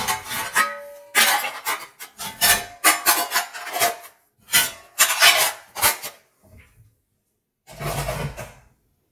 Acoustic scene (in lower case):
kitchen